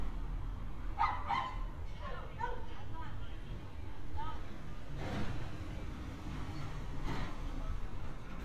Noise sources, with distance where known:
dog barking or whining, near

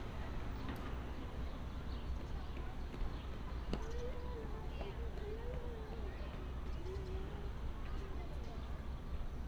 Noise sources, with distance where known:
person or small group talking, far

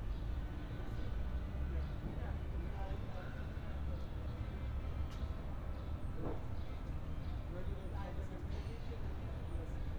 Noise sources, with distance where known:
music from an unclear source, near
person or small group talking, near

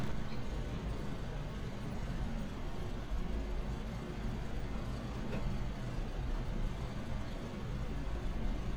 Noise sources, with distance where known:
engine of unclear size

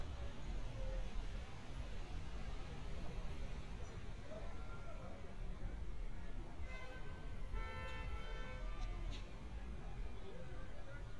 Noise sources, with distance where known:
car horn, near
person or small group shouting

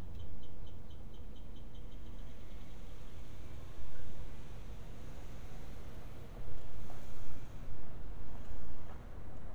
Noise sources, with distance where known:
background noise

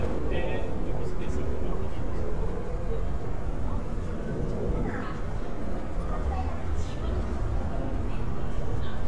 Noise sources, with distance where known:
person or small group talking, near

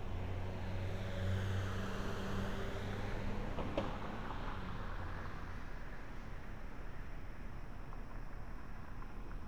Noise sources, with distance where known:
engine of unclear size

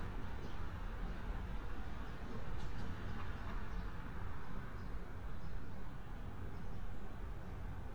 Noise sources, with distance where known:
background noise

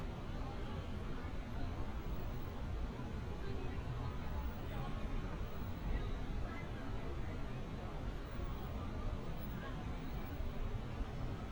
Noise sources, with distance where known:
person or small group talking, far

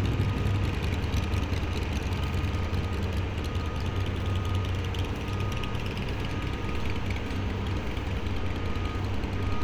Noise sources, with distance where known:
engine of unclear size

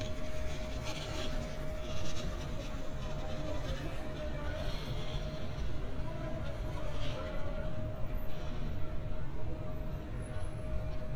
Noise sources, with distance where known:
person or small group talking, far

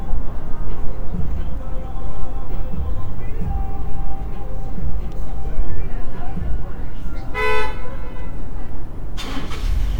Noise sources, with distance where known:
medium-sounding engine, near
car horn, near
music from a moving source, far

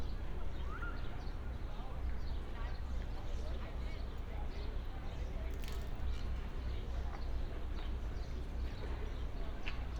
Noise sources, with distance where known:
person or small group talking, far

